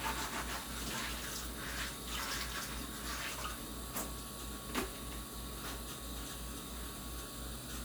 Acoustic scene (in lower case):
kitchen